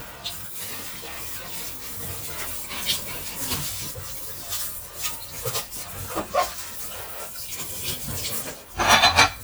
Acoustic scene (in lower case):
kitchen